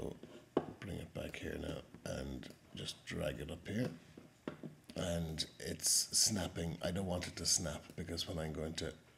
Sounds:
Speech

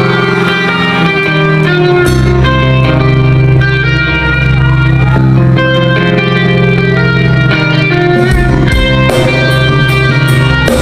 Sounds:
Music

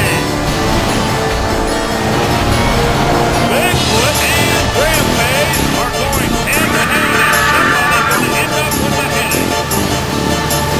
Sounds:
Speech, Vehicle, Music

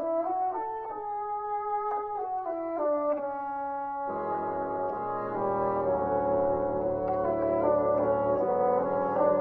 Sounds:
playing bassoon

